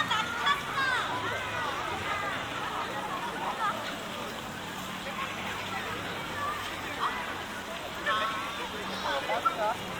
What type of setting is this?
park